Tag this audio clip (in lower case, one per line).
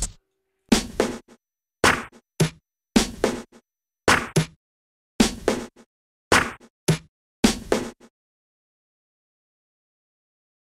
silence
music